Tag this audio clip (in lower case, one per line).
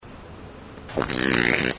fart